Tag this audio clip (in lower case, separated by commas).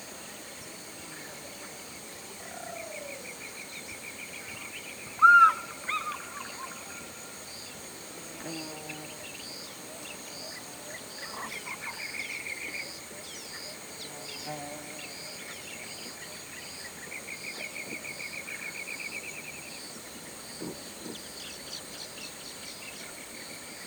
wild animals, buzz, animal, insect, bird, tweet, bird song